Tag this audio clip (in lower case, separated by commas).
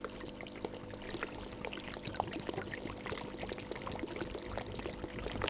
liquid, water